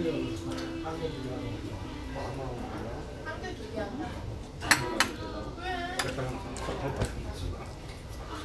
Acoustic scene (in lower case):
restaurant